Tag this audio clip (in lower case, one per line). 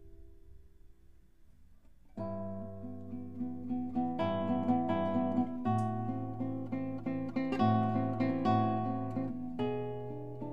musical instrument
strum
guitar
acoustic guitar
music
plucked string instrument